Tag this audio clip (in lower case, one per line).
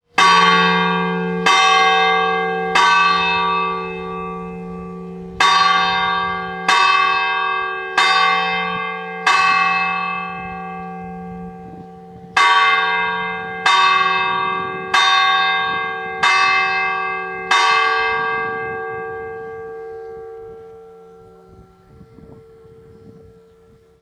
church bell
bell